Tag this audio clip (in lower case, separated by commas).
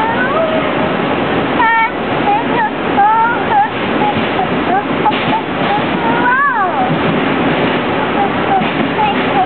child singing